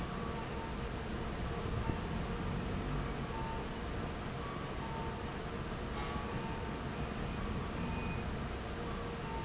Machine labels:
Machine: fan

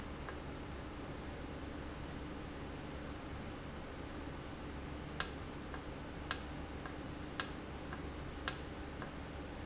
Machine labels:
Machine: valve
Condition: normal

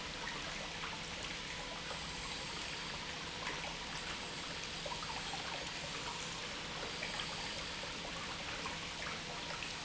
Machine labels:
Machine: pump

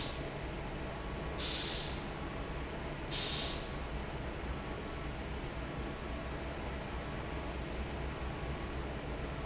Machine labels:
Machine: fan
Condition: normal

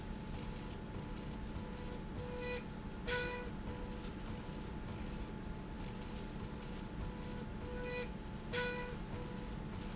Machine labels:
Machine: slide rail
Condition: normal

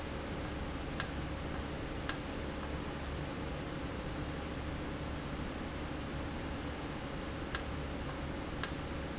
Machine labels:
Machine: valve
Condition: normal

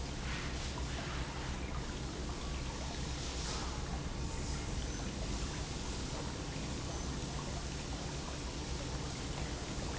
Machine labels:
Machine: pump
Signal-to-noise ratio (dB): -6 dB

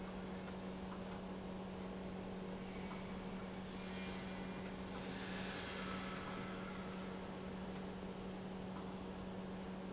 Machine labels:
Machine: pump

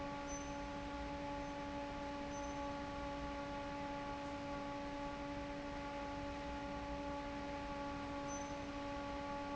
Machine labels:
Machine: fan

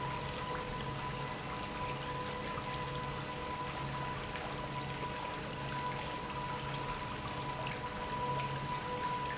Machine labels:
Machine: pump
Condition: normal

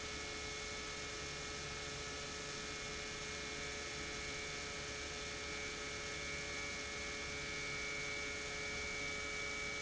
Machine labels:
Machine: pump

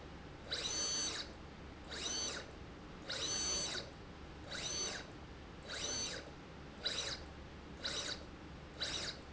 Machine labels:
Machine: slide rail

